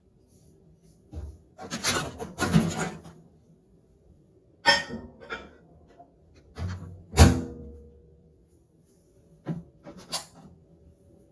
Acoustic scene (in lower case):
kitchen